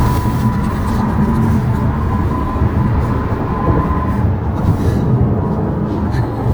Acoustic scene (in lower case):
car